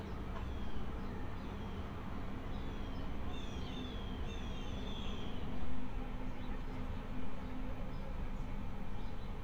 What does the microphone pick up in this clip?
background noise